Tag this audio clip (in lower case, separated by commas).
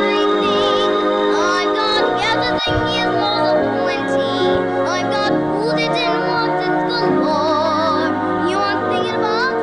child singing, music